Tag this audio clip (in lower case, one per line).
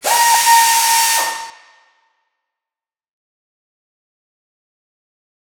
mechanisms